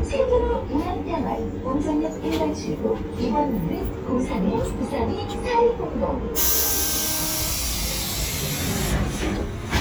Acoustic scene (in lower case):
bus